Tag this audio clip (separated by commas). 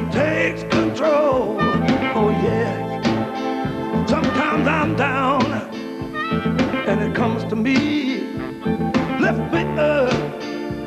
Music